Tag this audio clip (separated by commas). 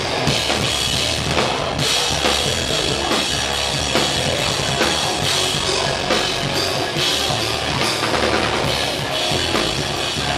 Music